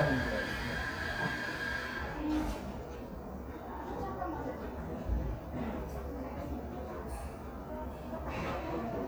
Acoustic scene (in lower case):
crowded indoor space